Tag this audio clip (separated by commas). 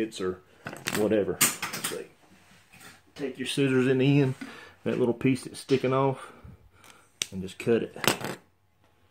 Speech